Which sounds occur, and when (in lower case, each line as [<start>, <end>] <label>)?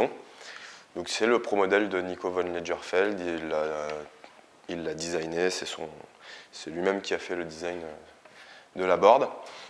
[0.00, 0.15] man speaking
[0.01, 9.65] background noise
[0.36, 0.87] breathing
[0.83, 4.06] man speaking
[4.58, 5.97] man speaking
[6.17, 6.44] breathing
[6.53, 8.14] man speaking
[8.22, 8.60] breathing
[8.60, 9.48] man speaking
[9.41, 9.65] breathing